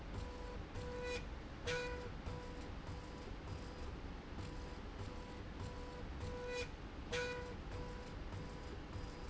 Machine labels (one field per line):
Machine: slide rail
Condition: normal